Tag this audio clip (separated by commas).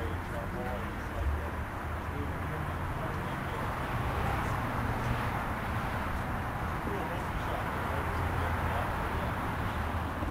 Vehicle, Speech